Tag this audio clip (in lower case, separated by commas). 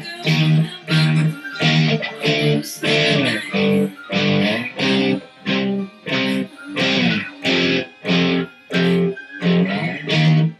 guitar, electric guitar, musical instrument, plucked string instrument, music, singing